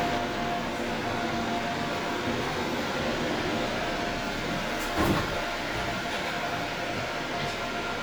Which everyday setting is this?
subway train